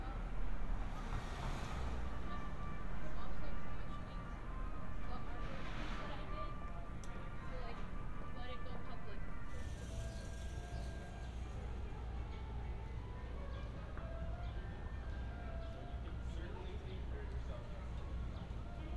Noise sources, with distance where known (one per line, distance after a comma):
music from an unclear source
person or small group talking